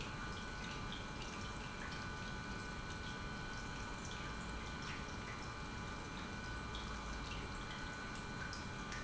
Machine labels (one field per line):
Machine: pump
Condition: normal